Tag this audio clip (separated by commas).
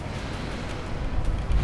Wind